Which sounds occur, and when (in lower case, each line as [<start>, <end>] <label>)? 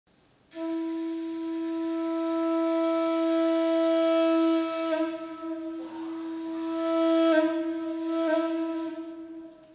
[0.05, 9.74] background noise
[0.48, 9.74] music
[9.46, 9.74] generic impact sounds